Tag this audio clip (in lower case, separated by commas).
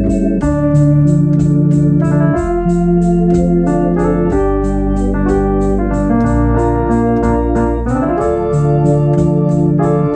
hammond organ, organ, playing hammond organ